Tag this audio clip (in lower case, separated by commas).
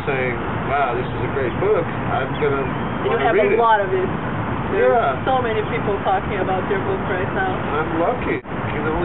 speech